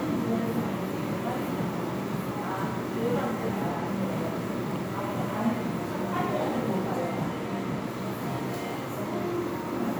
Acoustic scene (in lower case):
crowded indoor space